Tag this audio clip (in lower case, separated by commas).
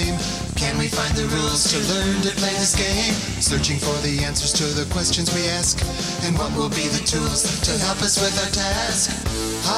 music